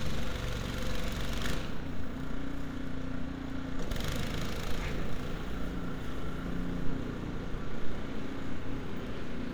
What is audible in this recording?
engine of unclear size, unidentified impact machinery